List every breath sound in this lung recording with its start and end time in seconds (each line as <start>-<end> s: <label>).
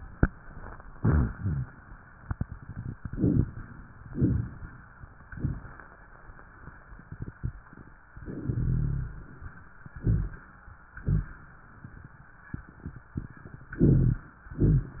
0.93-1.71 s: exhalation
0.93-1.71 s: rhonchi
3.06-3.51 s: inhalation
3.06-3.51 s: crackles
4.06-4.52 s: exhalation
4.06-4.52 s: crackles
10.00-10.46 s: rhonchi
10.02-10.47 s: inhalation
10.97-11.42 s: exhalation
10.97-11.42 s: rhonchi
13.83-14.29 s: inhalation
13.83-14.29 s: rhonchi
14.53-14.99 s: exhalation
14.53-14.99 s: rhonchi